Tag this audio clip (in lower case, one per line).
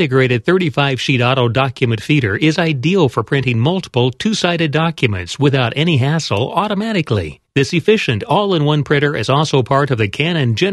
speech